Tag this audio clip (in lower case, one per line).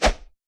whoosh